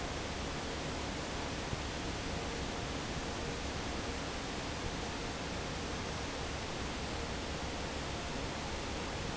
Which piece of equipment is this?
fan